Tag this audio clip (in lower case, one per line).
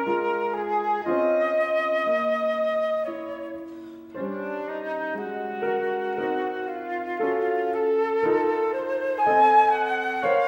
music
flute
playing flute